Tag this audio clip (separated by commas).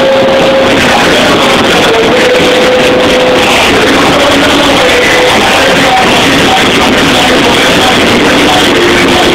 Sound effect